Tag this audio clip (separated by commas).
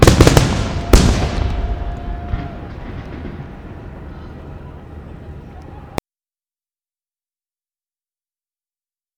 Human group actions, Fireworks, Explosion, Cheering